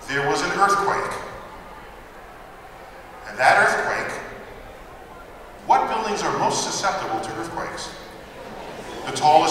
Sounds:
man speaking

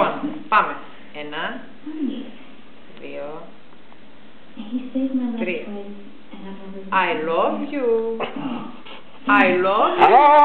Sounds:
speech

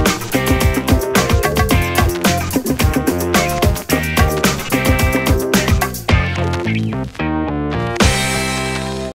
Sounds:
music

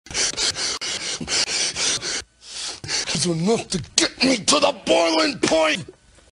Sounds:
speech

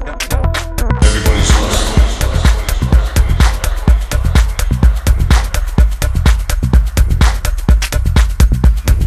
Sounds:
music

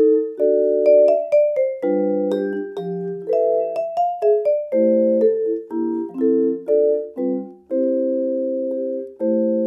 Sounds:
playing vibraphone

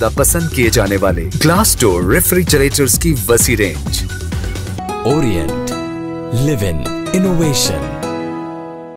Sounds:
music
speech

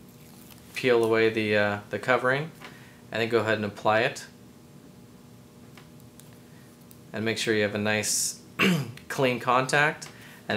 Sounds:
speech

